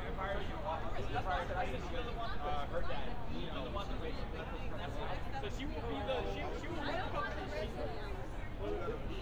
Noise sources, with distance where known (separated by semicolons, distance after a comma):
person or small group talking, near